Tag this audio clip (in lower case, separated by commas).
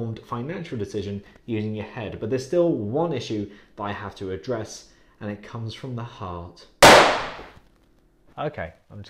gunfire